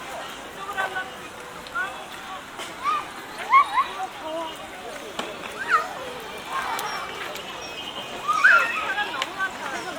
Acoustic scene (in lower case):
park